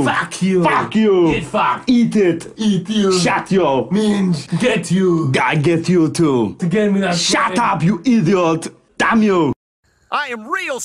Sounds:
inside a small room, Speech

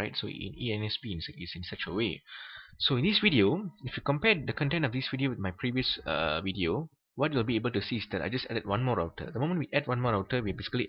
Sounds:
Speech

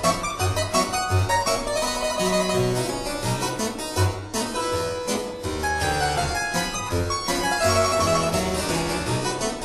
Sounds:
playing harpsichord

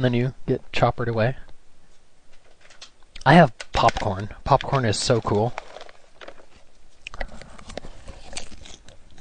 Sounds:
Biting

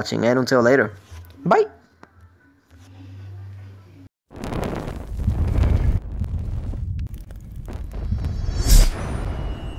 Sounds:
Speech

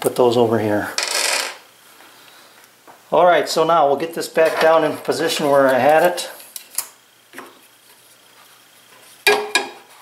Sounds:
Speech

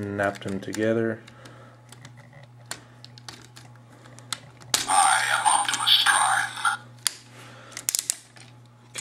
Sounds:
Speech

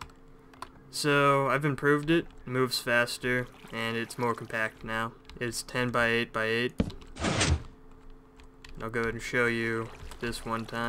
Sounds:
Speech

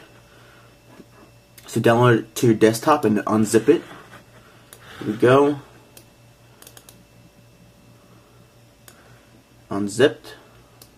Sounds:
inside a small room, Speech

